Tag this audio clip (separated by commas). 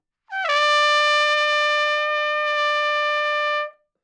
Trumpet, Brass instrument, Musical instrument, Music